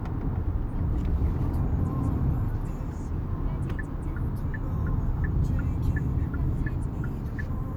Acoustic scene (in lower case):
car